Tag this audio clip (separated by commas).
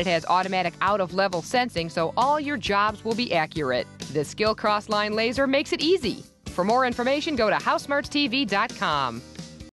Music, Speech